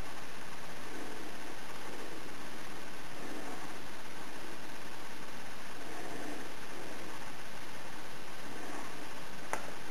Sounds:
inside a small room

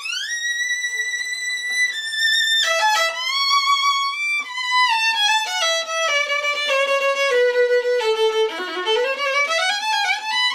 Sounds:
music, violin, musical instrument

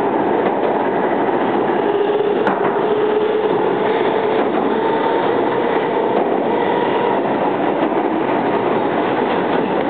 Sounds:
train, outside, urban or man-made, vehicle

